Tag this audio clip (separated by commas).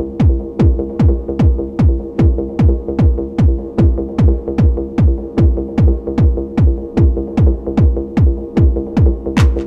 Music, Techno